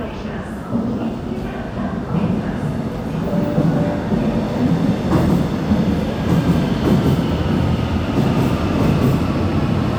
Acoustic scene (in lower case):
subway station